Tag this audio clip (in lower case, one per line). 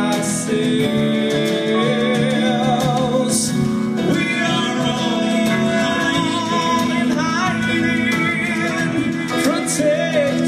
singing
music